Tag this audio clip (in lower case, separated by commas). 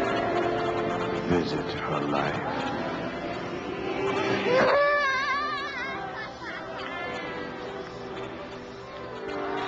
speech, music